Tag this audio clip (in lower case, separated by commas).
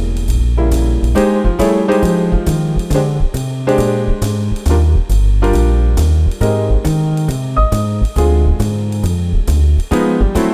music